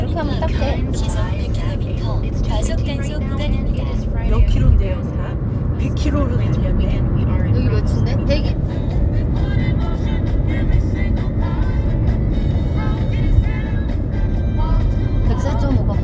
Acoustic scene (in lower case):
car